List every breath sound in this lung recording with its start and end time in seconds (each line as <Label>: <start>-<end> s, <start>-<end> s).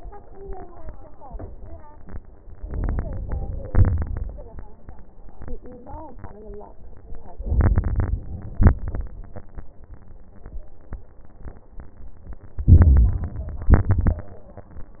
Inhalation: 2.59-3.69 s, 7.29-8.16 s, 12.67-13.68 s
Exhalation: 3.69-4.68 s, 8.19-9.05 s, 13.69-14.34 s
Crackles: 3.67-4.68 s, 8.15-9.09 s, 12.67-13.62 s, 13.69-14.35 s